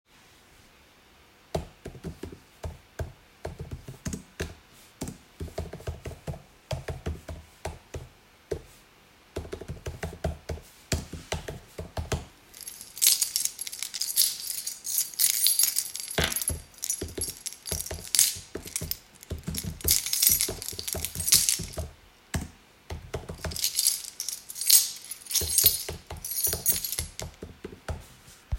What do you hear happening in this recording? I was working on my laptop and playing with keychain for better concentration.